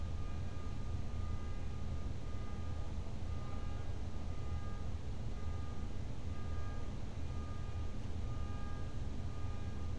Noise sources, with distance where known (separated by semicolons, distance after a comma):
car alarm, far